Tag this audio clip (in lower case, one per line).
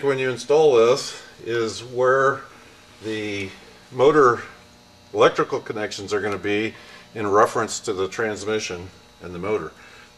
speech